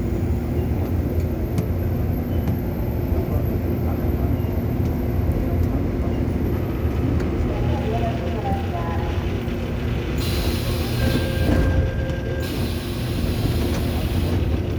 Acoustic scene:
subway train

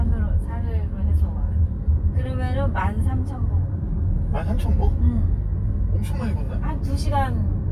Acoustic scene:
car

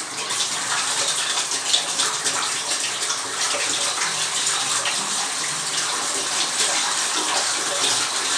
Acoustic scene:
restroom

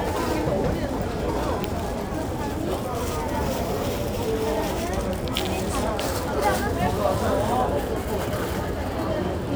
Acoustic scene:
crowded indoor space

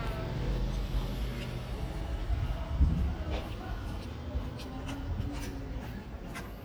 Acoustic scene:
residential area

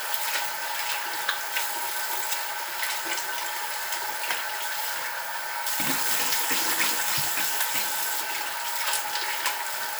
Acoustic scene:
restroom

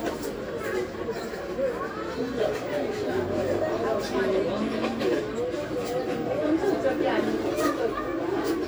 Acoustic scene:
park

